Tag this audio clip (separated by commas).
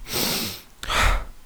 Sigh, Breathing, Human voice, Respiratory sounds